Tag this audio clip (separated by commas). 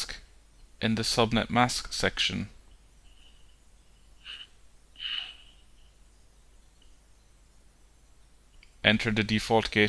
inside a small room, Speech